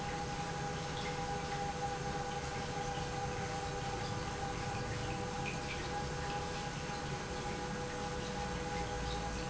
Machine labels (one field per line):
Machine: pump